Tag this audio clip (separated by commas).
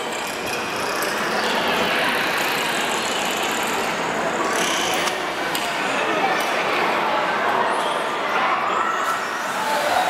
Speech, Water